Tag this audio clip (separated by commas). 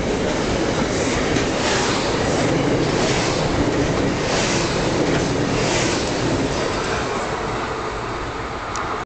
Vehicle